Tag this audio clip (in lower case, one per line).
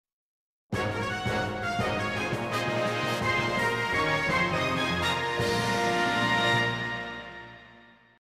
music